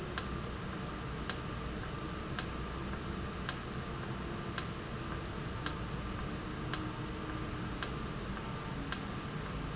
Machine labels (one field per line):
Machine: valve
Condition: normal